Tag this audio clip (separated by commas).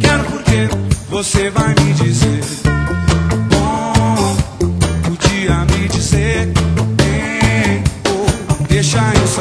Music